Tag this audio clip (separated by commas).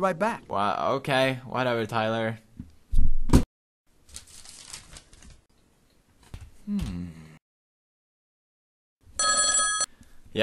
Telephone bell ringing, Speech